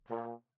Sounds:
brass instrument, musical instrument, music

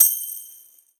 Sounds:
music, musical instrument, percussion, tambourine

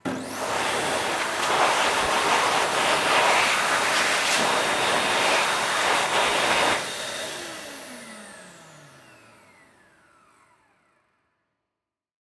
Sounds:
home sounds

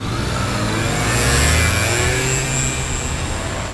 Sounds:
accelerating, motorcycle, engine, motor vehicle (road), vehicle

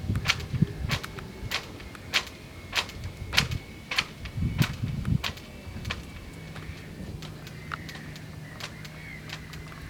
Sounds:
wind

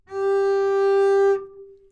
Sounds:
musical instrument, music, bowed string instrument

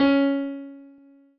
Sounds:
music, keyboard (musical), musical instrument, piano

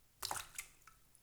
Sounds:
splash, liquid, water

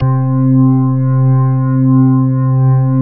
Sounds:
keyboard (musical), organ, music, musical instrument

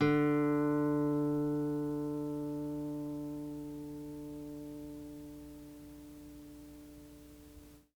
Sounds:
plucked string instrument, guitar, music, musical instrument

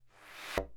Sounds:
thump

